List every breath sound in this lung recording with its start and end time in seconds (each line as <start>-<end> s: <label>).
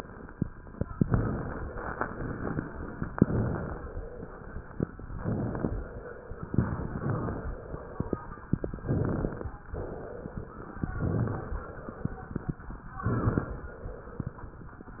0.98-2.07 s: inhalation
2.07-3.07 s: exhalation
3.17-3.80 s: inhalation
3.80-4.58 s: exhalation
5.06-5.73 s: inhalation
5.73-6.45 s: exhalation
6.55-7.38 s: inhalation
7.38-8.18 s: exhalation
8.76-9.57 s: inhalation
9.73-10.74 s: exhalation
10.84-11.66 s: inhalation
11.68-12.83 s: exhalation
12.99-13.69 s: inhalation
13.69-14.80 s: exhalation